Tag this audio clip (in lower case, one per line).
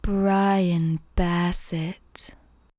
human voice